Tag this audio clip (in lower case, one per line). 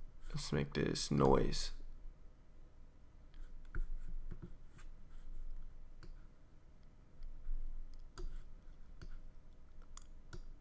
inside a small room
speech